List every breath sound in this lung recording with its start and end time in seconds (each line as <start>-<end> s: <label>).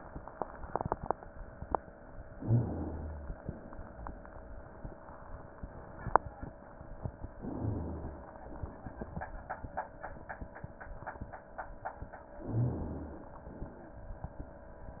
2.35-3.39 s: inhalation
2.44-3.39 s: rhonchi
7.40-8.34 s: inhalation
7.56-8.27 s: rhonchi
12.42-13.22 s: rhonchi
12.42-13.32 s: inhalation